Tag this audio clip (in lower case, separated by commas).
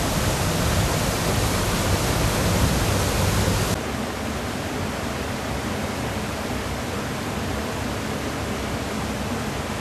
stream, stream burbling, waterfall